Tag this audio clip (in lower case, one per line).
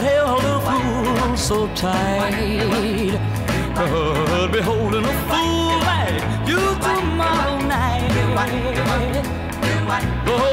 music